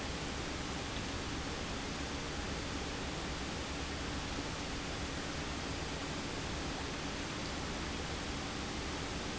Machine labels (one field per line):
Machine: pump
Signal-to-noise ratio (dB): -6 dB